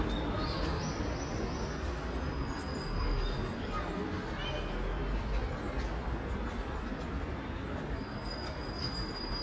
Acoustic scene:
park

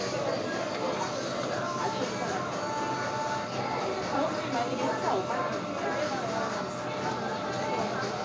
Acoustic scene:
crowded indoor space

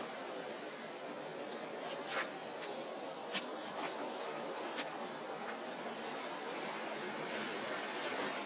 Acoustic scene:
residential area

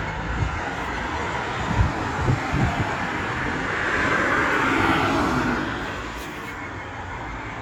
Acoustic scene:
street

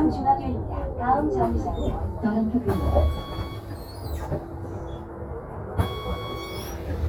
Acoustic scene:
bus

